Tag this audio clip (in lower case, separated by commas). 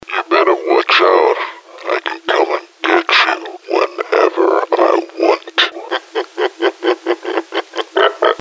laughter, human voice